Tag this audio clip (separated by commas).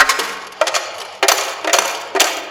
home sounds, Coin (dropping)